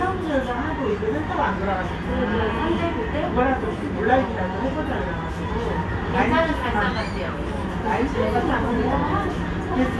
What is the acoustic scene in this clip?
restaurant